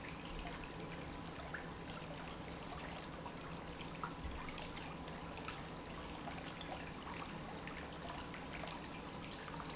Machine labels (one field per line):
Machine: pump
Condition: normal